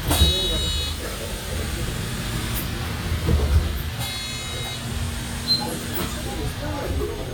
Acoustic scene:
bus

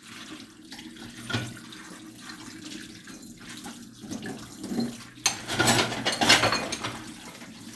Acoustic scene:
kitchen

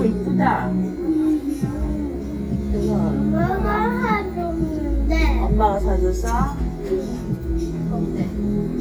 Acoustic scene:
restaurant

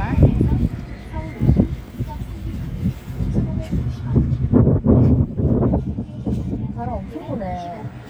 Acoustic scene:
residential area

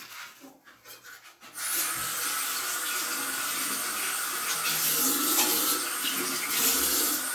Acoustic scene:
restroom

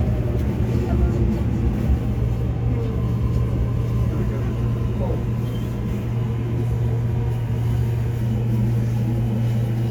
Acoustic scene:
subway train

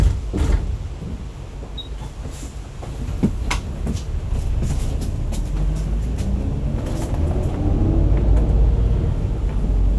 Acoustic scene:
bus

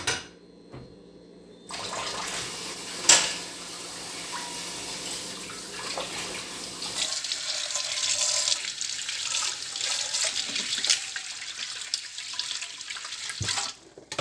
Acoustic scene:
kitchen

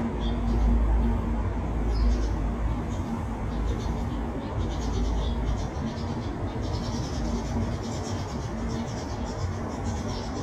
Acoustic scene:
residential area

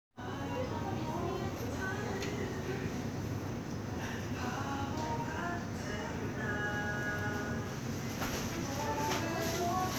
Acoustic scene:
crowded indoor space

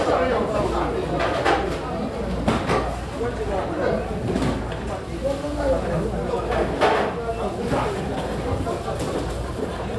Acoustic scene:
crowded indoor space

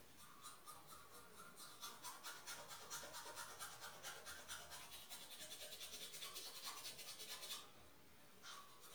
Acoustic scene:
restroom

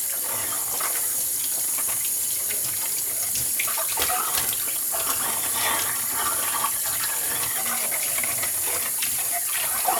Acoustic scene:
kitchen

